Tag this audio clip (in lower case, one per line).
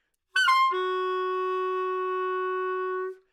music
woodwind instrument
musical instrument